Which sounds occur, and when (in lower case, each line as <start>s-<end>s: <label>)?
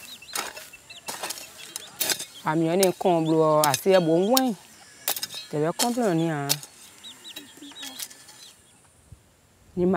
0.0s-8.9s: bird vocalization
0.0s-9.9s: wind
0.3s-0.7s: generic impact sounds
0.6s-2.4s: man speaking
0.9s-1.4s: generic impact sounds
1.6s-2.2s: generic impact sounds
2.4s-9.9s: conversation
2.4s-4.6s: woman speaking
2.7s-2.9s: generic impact sounds
3.6s-4.0s: generic impact sounds
4.3s-4.4s: generic impact sounds
5.1s-5.5s: generic impact sounds
5.5s-6.6s: woman speaking
5.8s-6.0s: generic impact sounds
6.5s-7.0s: generic impact sounds
6.5s-8.8s: cock-a-doodle-doo
7.4s-7.9s: kid speaking
7.7s-8.5s: generic impact sounds
8.1s-8.9s: man speaking
8.8s-8.9s: tick
9.1s-9.2s: tick
9.8s-9.9s: woman speaking